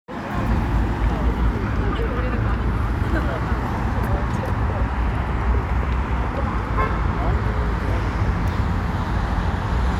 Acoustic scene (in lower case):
street